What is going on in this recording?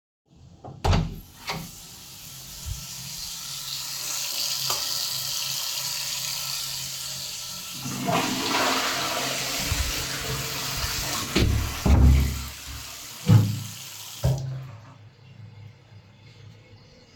The water was running in the bathroom. I opened the door, turned the light on and flushed the tolet. While the toilet was fushing I closed the door. Finally, I turned the water off.